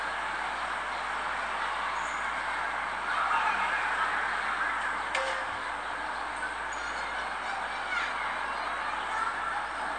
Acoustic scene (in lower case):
residential area